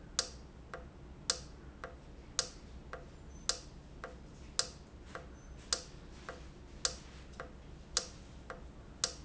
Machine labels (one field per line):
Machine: valve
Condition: normal